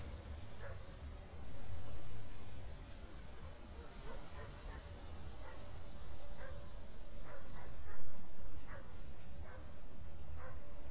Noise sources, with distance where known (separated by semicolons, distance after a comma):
background noise